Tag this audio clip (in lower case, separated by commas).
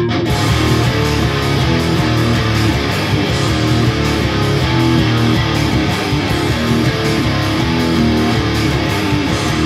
plucked string instrument, music, musical instrument, guitar